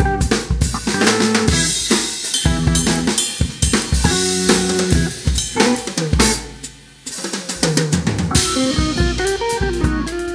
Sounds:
Drum kit, Cymbal, inside a large room or hall, Musical instrument, Drum roll, Drum, Snare drum, Music, Hi-hat

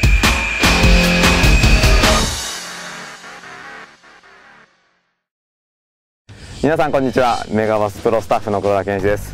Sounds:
Music, Speech, outside, urban or man-made

